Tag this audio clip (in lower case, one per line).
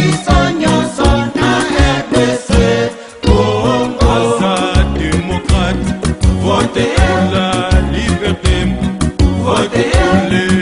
jingle (music)
music